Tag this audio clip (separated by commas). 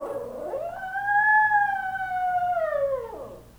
Animal, pets, Dog